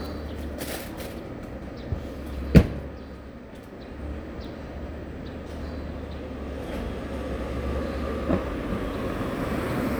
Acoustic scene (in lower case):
residential area